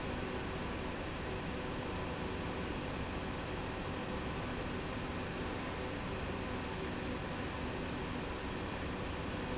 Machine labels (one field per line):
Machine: slide rail